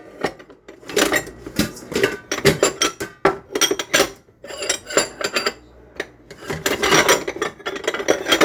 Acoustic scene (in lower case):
kitchen